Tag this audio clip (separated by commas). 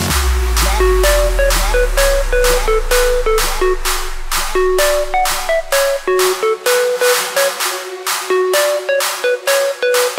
Sound effect, Music